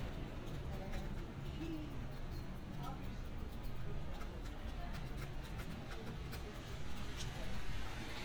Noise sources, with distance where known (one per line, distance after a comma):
person or small group talking, near